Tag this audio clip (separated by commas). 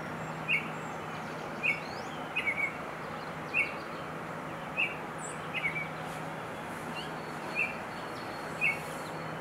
baltimore oriole calling